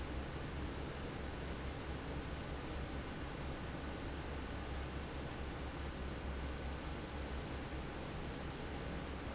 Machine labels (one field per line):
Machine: fan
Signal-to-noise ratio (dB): 0 dB